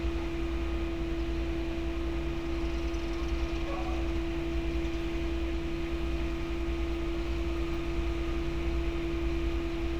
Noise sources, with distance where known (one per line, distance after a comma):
engine of unclear size, near
dog barking or whining, far